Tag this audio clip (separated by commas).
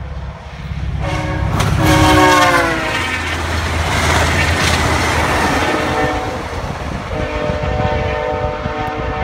train horning